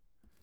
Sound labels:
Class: drawer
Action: closing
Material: wooden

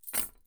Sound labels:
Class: object falling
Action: being thrown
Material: metal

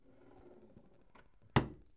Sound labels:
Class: drawer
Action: closing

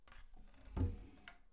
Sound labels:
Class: furniture moving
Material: wooden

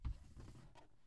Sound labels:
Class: drawer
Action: closing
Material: plastic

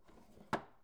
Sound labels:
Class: drawer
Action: closing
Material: wooden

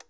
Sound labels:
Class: switch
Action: being turned off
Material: plastic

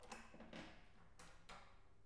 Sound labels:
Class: door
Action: opening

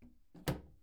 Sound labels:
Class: cupboard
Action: closing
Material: wooden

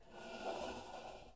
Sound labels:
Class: furniture moving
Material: metal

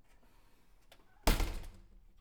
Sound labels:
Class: window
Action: closing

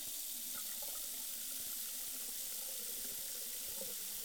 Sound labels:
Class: water tap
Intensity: high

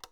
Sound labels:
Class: switch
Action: being turned off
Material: plastic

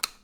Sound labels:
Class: switch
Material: plastic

